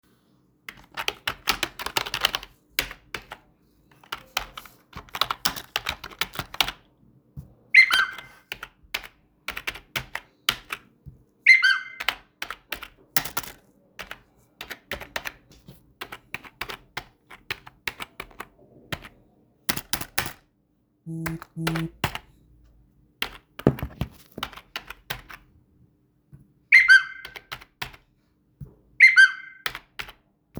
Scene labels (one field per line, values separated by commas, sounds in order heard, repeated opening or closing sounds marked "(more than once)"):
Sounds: keyboard typing, phone ringing